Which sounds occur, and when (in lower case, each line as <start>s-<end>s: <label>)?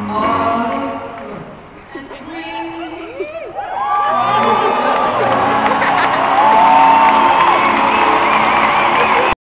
0.0s-1.4s: male singing
1.8s-3.5s: female singing
3.6s-5.2s: whoop
4.2s-9.3s: music
4.2s-9.3s: cheering
4.8s-9.3s: clapping
5.7s-6.2s: laughter
7.6s-9.3s: whistling